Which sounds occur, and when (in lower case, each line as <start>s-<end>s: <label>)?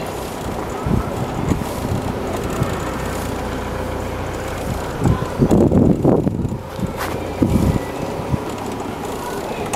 0.0s-1.6s: wind noise (microphone)
0.0s-9.7s: motor vehicle (road)
0.0s-9.7s: wind
1.5s-1.5s: tick
2.3s-2.4s: tick
4.5s-5.1s: wind noise (microphone)
5.4s-6.5s: wind noise (microphone)
5.5s-5.6s: tick
6.8s-7.8s: wind noise (microphone)
7.0s-7.1s: tick
8.0s-9.7s: wind noise (microphone)
9.3s-9.7s: human voice
9.7s-9.7s: tick